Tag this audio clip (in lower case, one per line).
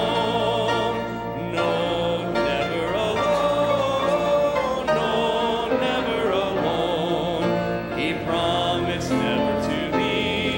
music
male singing